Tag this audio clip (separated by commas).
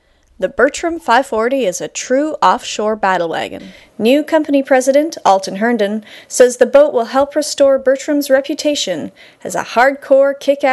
Speech